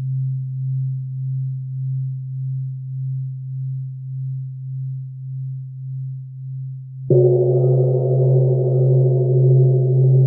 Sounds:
gong

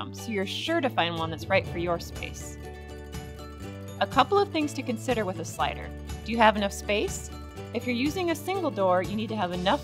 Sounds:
music
speech

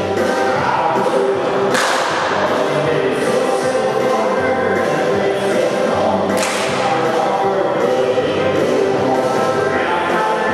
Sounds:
music

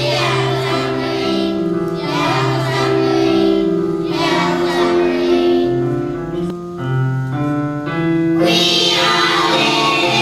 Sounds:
child singing

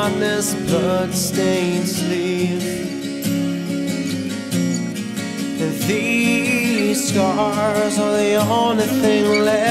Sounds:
music

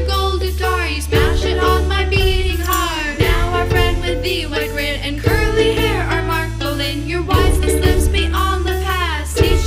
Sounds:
music
tender music

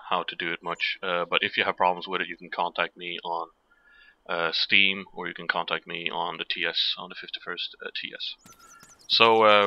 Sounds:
speech

